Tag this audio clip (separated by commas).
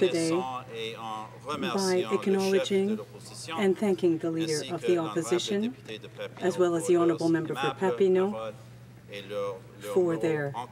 Narration, man speaking, Speech, Female speech